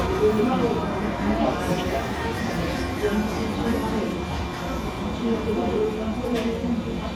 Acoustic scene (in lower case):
cafe